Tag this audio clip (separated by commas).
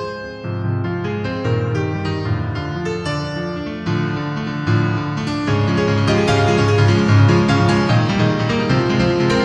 Music